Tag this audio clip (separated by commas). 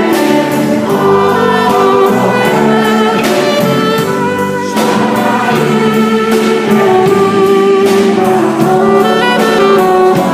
Gospel music, Choir, Christian music, Music, Singing, Musical instrument